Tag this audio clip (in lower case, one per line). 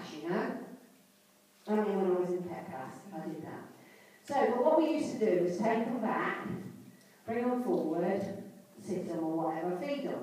speech